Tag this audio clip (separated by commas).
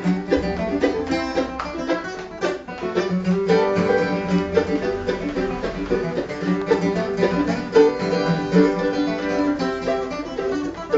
Acoustic guitar, Music, Strum, Plucked string instrument, Musical instrument, Guitar